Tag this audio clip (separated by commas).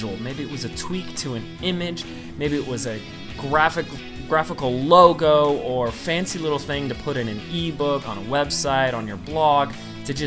Music, Speech